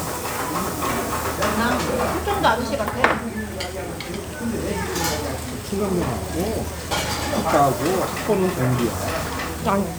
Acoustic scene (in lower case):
restaurant